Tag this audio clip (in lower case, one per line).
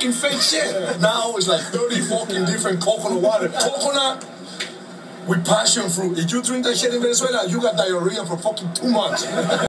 speech